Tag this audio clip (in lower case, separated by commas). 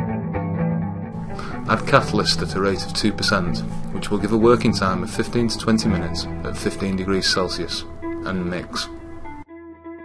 music, speech